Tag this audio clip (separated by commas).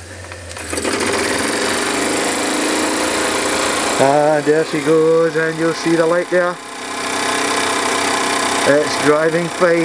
Speech